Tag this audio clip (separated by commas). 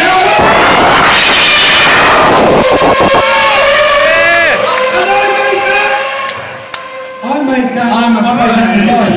Vehicle, Speech